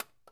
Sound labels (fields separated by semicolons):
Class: object falling; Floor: carpet